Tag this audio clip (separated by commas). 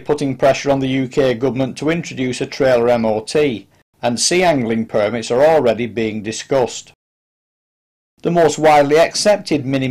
Speech